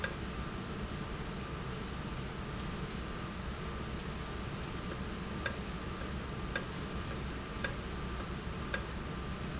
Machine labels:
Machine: valve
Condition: normal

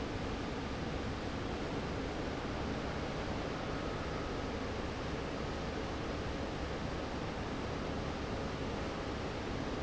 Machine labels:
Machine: fan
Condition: abnormal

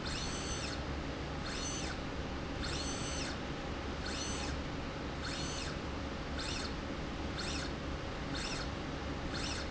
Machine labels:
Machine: slide rail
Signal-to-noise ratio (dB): -6 dB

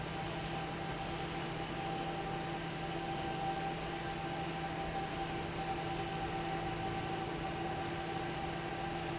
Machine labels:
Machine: fan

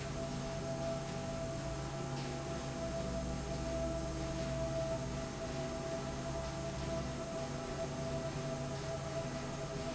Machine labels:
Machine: slide rail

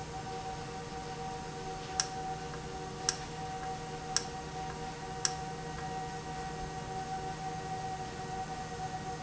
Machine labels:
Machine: valve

